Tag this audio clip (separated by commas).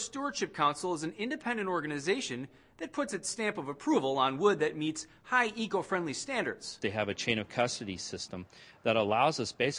Speech